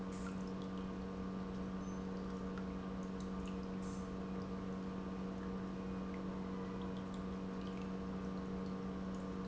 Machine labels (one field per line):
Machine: pump